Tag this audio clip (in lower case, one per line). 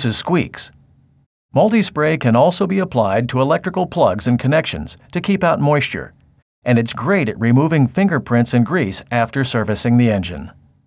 speech